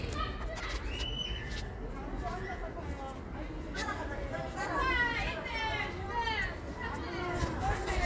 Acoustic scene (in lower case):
residential area